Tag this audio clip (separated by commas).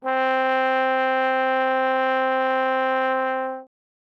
Music, Musical instrument, Brass instrument